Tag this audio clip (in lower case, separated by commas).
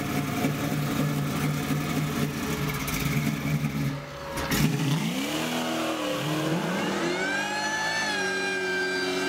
outside, urban or man-made, vehicle, car, music